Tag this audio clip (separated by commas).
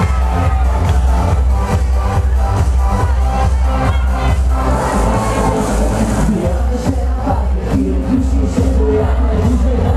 Music, Speech